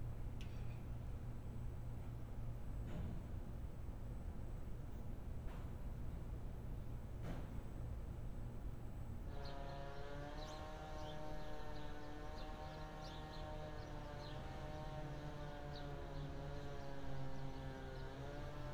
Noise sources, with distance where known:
engine of unclear size

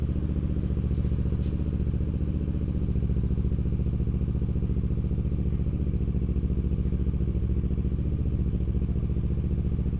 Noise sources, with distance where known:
medium-sounding engine, near

